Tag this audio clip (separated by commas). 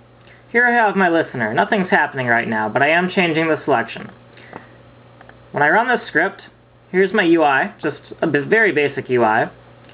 Speech